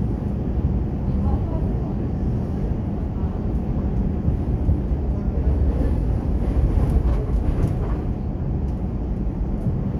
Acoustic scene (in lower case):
subway train